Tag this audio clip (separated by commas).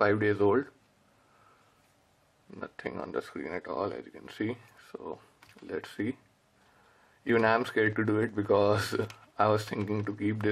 Speech